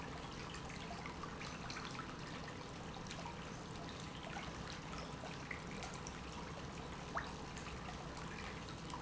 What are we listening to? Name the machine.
pump